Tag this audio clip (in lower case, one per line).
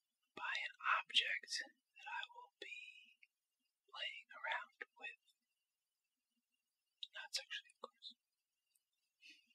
speech